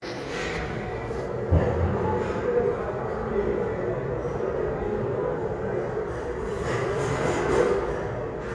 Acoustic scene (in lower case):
restaurant